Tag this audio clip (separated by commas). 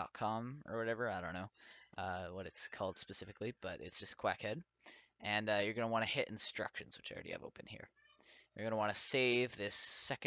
Speech